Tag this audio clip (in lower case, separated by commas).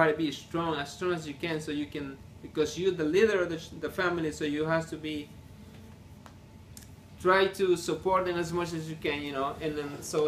inside a small room, speech